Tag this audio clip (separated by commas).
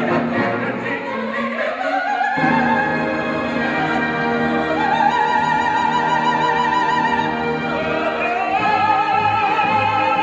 Orchestra, Music, Singing, Opera